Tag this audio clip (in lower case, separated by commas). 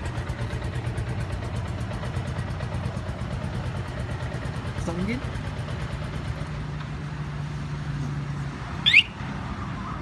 speech